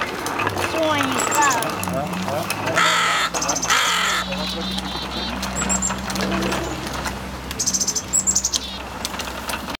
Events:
[0.00, 1.85] generic impact sounds
[0.00, 9.75] motor vehicle (road)
[0.56, 1.63] woman speaking
[0.59, 0.85] bird vocalization
[1.32, 1.58] bird vocalization
[1.82, 2.08] man speaking
[2.08, 2.69] generic impact sounds
[2.27, 2.41] man speaking
[2.63, 3.67] man speaking
[2.74, 3.29] caw
[3.31, 3.93] bird vocalization
[3.62, 4.20] caw
[4.13, 5.27] bird vocalization
[4.22, 4.84] man speaking
[4.74, 4.82] tick
[5.13, 5.68] human voice
[5.43, 5.91] bird vocalization
[5.59, 6.56] generic impact sounds
[6.12, 6.73] human voice
[6.83, 7.16] generic impact sounds
[7.45, 7.59] tick
[7.55, 7.97] bird vocalization
[8.12, 8.77] bird vocalization
[8.51, 8.63] tick
[9.03, 9.75] man speaking

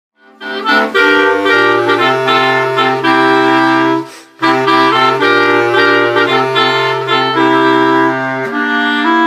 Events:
[0.09, 9.25] music

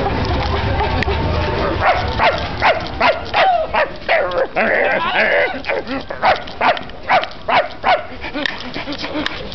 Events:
[0.00, 1.61] pant
[0.00, 3.35] music
[0.00, 9.54] wind
[0.17, 0.53] generic impact sounds
[0.97, 1.02] tick
[1.74, 2.17] generic impact sounds
[1.76, 1.94] bark
[2.13, 2.29] bark
[2.26, 2.45] generic impact sounds
[2.52, 2.88] generic impact sounds
[2.58, 2.73] bark
[2.98, 3.15] bark
[2.98, 3.44] generic impact sounds
[3.32, 3.44] bark
[3.37, 3.64] dog
[3.71, 3.84] bark
[3.91, 4.00] generic impact sounds
[4.06, 4.43] growling
[4.25, 4.38] generic impact sounds
[4.52, 5.38] generic impact sounds
[4.53, 5.48] growling
[4.91, 5.11] man speaking
[5.41, 6.02] dog
[5.50, 6.11] generic impact sounds
[6.17, 6.33] bark
[6.23, 6.91] generic impact sounds
[6.57, 6.71] bark
[7.00, 7.33] generic impact sounds
[7.04, 7.24] bark
[7.18, 7.22] tick
[7.44, 7.63] bark
[7.44, 7.89] generic impact sounds
[7.81, 7.96] bark
[8.04, 9.54] pant
[8.39, 8.47] generic impact sounds
[8.41, 8.46] tick
[8.57, 8.74] generic impact sounds
[8.86, 8.93] generic impact sounds
[9.22, 9.27] tick

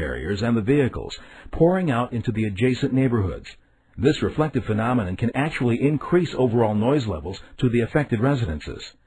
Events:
[0.01, 9.05] background noise
[0.01, 1.16] man speaking
[1.21, 1.46] breathing
[1.44, 3.50] man speaking
[3.56, 3.84] breathing
[3.86, 3.96] clicking
[3.92, 8.93] man speaking

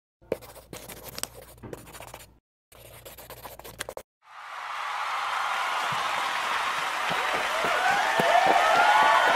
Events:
[0.19, 2.37] background noise
[0.25, 0.35] tap
[0.27, 0.58] writing
[0.71, 1.47] writing
[1.14, 1.24] tick
[1.60, 1.78] thump
[1.60, 2.25] writing
[2.69, 3.97] writing
[2.69, 3.99] background noise
[4.19, 9.35] crowd
[5.85, 5.98] tap
[7.04, 7.38] walk
[7.40, 9.35] shout
[7.58, 7.95] walk
[8.13, 8.52] walk
[8.71, 9.02] walk
[9.23, 9.35] walk

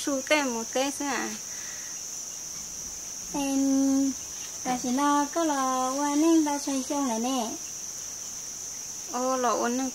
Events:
[0.01, 9.94] background noise
[0.03, 1.40] female singing
[3.09, 4.26] human voice
[4.61, 7.68] female singing
[9.12, 9.94] female singing

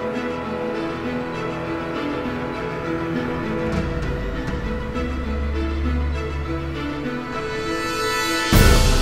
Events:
[0.00, 9.01] music

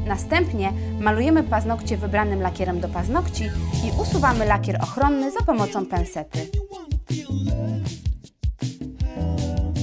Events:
[0.00, 0.71] woman speaking
[0.00, 9.82] music
[0.74, 0.92] breathing
[1.01, 3.43] woman speaking
[3.72, 6.55] woman speaking
[4.89, 7.81] singing
[9.01, 9.82] singing

